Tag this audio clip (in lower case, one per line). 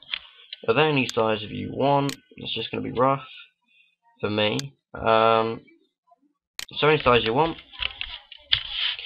speech